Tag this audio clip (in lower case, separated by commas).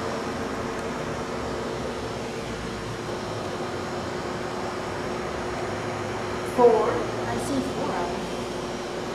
speech